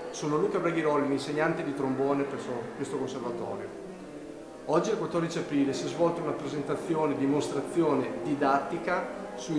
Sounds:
music, speech

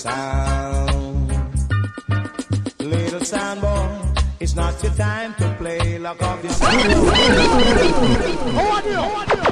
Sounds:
music, speech

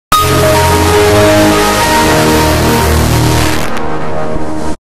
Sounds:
music

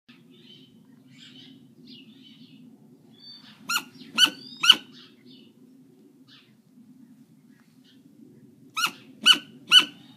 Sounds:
owl

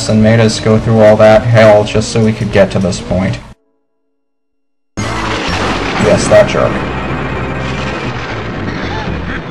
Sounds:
speech, music

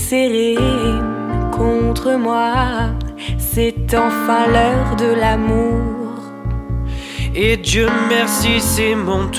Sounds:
music

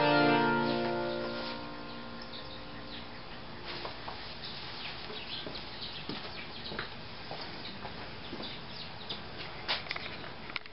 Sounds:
guitar, music, plucked string instrument, musical instrument

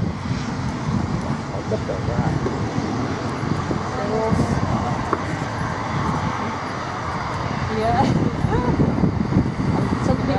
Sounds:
fixed-wing aircraft, vehicle, speech

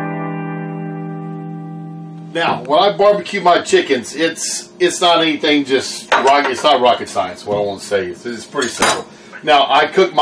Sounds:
speech, music

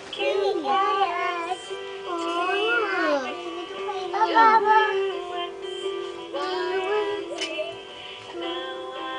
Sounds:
synthetic singing, music, speech, music for children

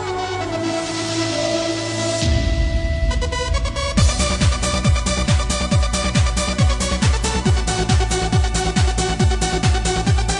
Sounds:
techno, music

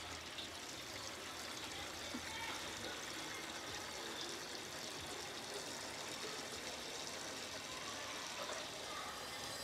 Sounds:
boiling, speech

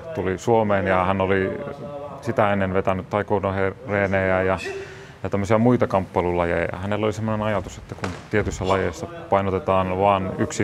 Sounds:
speech

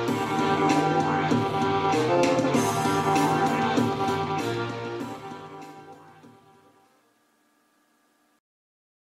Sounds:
music

